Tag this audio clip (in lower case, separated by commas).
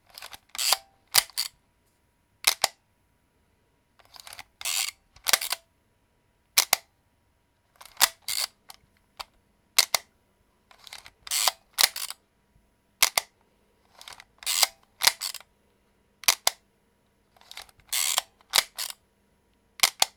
camera, mechanisms